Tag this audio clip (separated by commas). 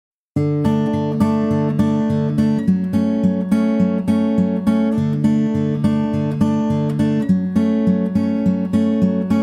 Acoustic guitar, Music